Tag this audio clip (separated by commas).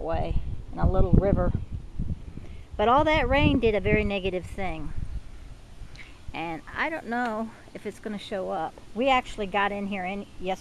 Speech